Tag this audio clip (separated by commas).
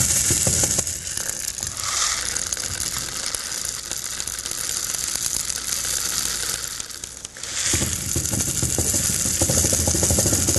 inside a large room or hall